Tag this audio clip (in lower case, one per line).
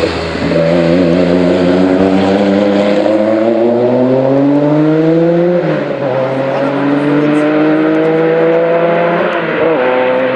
speech